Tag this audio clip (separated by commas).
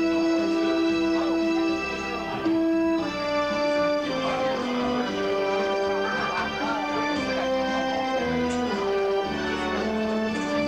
Brass instrument, French horn